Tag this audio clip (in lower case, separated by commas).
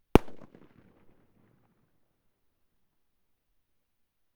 fireworks, explosion